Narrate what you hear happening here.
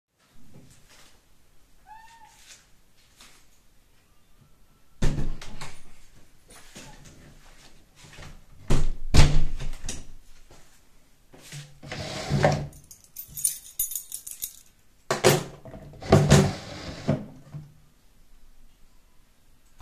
opened the door, entered then closed the door, opened the drawer, put the key inside, close the drawer